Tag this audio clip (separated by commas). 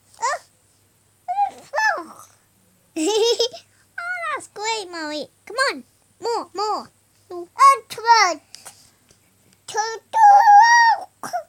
Human voice, Child speech, Speech